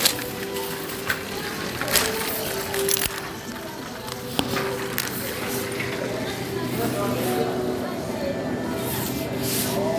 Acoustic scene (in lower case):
crowded indoor space